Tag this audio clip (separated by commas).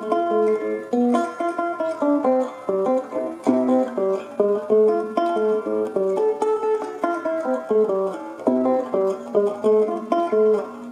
Plucked string instrument, Ukulele, Guitar, Music, Musical instrument